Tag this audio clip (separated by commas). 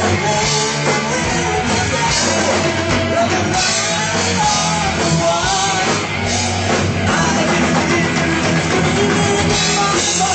Guitar, Plucked string instrument, Musical instrument, Music, Acoustic guitar, Strum